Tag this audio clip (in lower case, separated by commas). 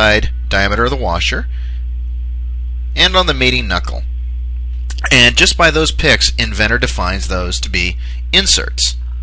speech